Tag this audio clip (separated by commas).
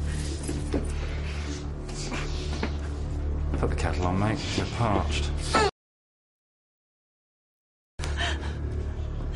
Speech, Music